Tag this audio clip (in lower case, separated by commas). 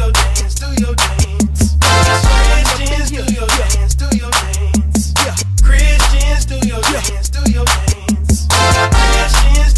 music